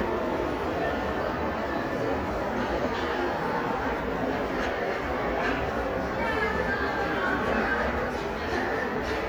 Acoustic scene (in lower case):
crowded indoor space